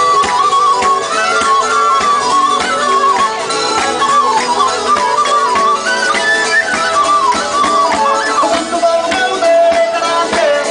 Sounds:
music

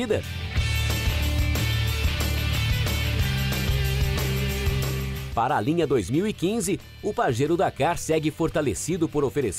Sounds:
speech, music

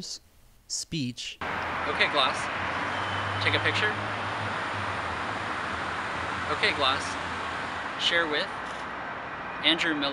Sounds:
speech

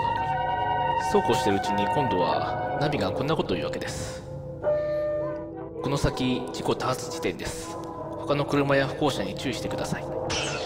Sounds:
speech

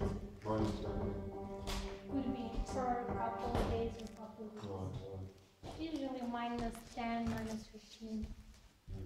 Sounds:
speech, music

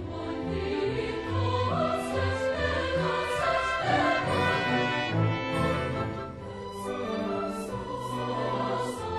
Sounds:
music, choir

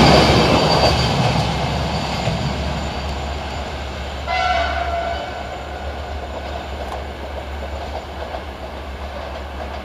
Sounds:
train horn, clickety-clack, train, rail transport, train wagon

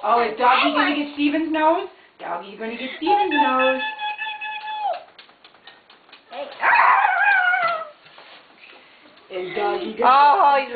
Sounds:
speech, kid speaking, inside a small room

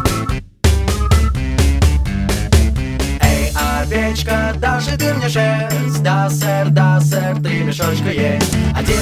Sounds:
music

